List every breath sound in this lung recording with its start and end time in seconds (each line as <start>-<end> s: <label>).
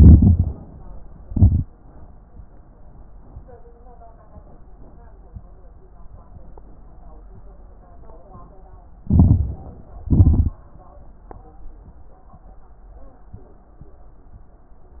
0.00-0.63 s: inhalation
0.00-0.63 s: crackles
1.17-1.71 s: exhalation
1.17-1.71 s: crackles
9.02-9.80 s: inhalation
9.02-9.80 s: crackles
10.02-10.65 s: exhalation
10.02-10.65 s: crackles